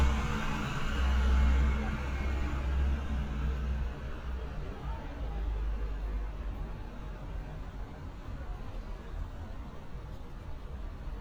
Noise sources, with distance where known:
engine of unclear size
person or small group talking, far

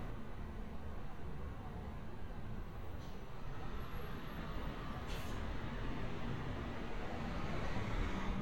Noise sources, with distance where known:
large-sounding engine, far

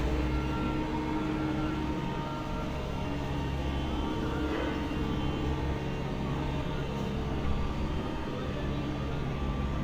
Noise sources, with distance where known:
large-sounding engine, near
reverse beeper, far
unidentified human voice

